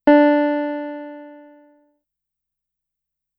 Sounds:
Musical instrument, Music, Keyboard (musical), Piano

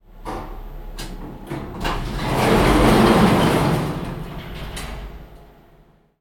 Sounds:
Domestic sounds, Door, Sliding door

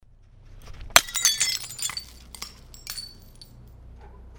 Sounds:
Crushing, Shatter, Glass

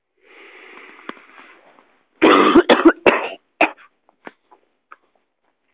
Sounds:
Respiratory sounds, Cough

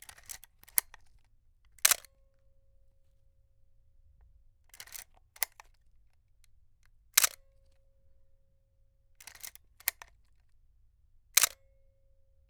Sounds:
Camera, Mechanisms

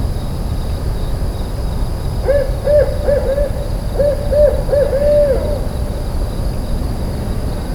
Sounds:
Bird, Wild animals, Animal

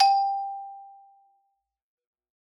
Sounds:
Musical instrument, Percussion, Music, Marimba, Mallet percussion

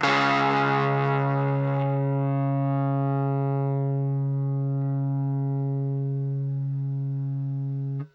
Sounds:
Musical instrument, Music, Plucked string instrument, Guitar

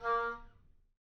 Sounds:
Musical instrument, Wind instrument, Music

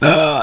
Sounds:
eructation

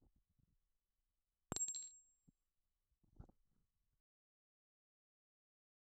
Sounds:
clink, Glass

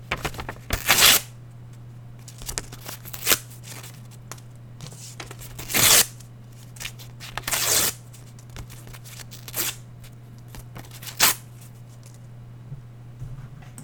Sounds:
Tearing

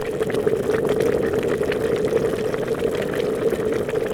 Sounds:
Boiling, Liquid

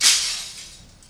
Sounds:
Glass, Shatter

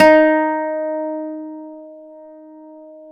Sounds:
Acoustic guitar, Music, Musical instrument, Guitar, Plucked string instrument

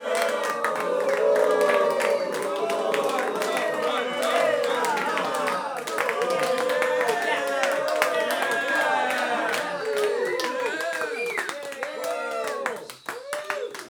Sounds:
Cheering, Human group actions

